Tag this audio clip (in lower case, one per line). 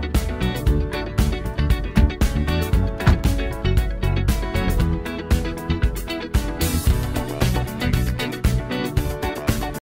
slam
music